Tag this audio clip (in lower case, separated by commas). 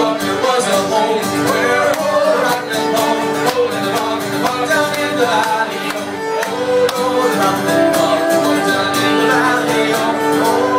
music, musical instrument, fiddle